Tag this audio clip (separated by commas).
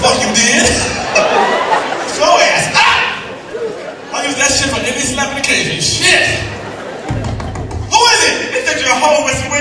Speech